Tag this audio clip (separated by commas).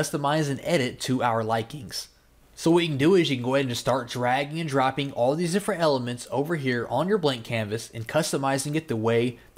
Speech